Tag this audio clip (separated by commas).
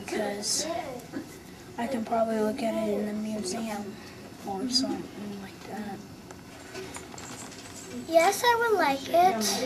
Speech